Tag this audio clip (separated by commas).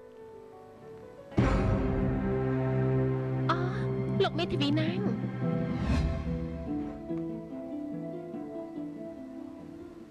Speech, Music